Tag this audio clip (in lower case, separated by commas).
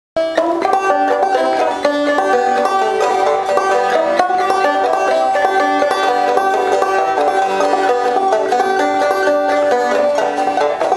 banjo, music